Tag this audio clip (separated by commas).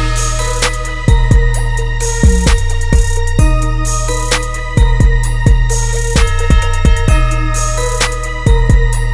Music